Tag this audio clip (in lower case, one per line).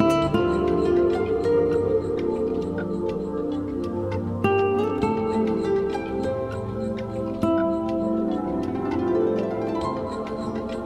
music